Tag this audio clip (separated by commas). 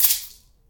Percussion, Rattle (instrument), Musical instrument, Music